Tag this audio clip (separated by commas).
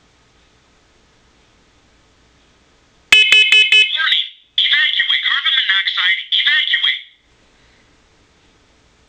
smoke alarm